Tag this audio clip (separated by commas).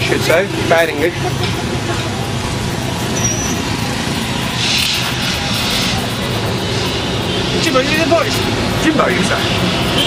Vehicle, Speech